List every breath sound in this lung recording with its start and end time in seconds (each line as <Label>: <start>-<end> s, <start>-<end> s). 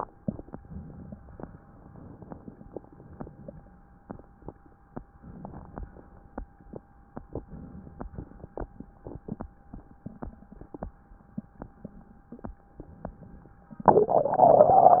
Inhalation: 0.60-1.32 s, 2.77-3.95 s, 5.17-5.87 s, 7.23-8.08 s, 12.76-13.59 s
Exhalation: 1.45-2.62 s, 5.88-6.58 s, 8.05-8.77 s